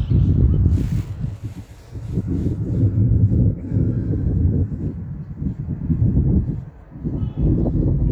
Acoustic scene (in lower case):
park